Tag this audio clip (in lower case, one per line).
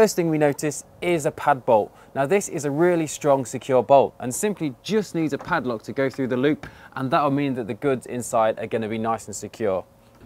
speech